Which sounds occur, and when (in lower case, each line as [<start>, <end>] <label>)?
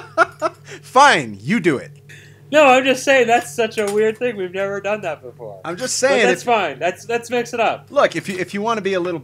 [0.00, 0.81] laughter
[0.00, 9.23] mechanisms
[0.29, 0.60] generic impact sounds
[0.93, 9.23] conversation
[0.96, 1.98] man speaking
[2.07, 2.44] breathing
[2.21, 2.31] tick
[2.51, 9.23] man speaking
[3.35, 3.44] tick
[3.69, 4.19] generic impact sounds